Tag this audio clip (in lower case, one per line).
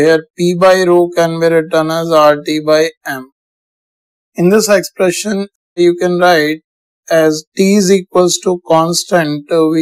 speech